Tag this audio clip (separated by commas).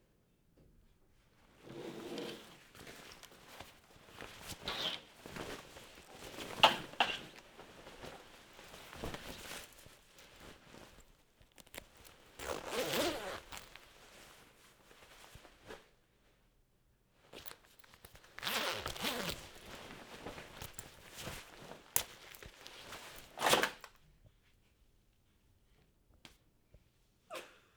home sounds, Zipper (clothing)